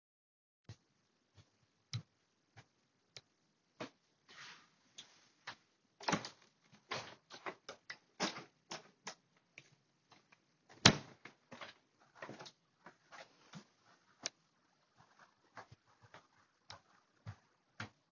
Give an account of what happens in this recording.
I walked across the room, opened the window, and then closed it again.